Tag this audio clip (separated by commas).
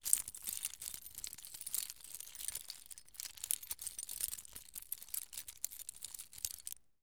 Keys jangling, home sounds